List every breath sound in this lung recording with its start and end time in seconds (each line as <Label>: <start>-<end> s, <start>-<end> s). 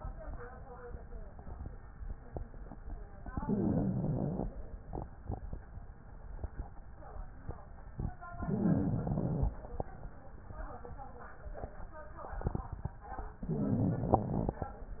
Inhalation: 3.17-4.56 s, 3.21-4.52 s, 8.32-9.77 s
Crackles: 3.17-4.56 s, 8.34-9.79 s, 13.31-14.76 s